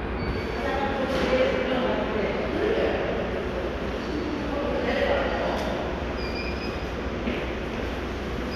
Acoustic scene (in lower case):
subway station